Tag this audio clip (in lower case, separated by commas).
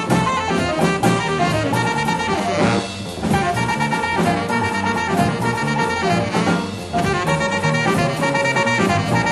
music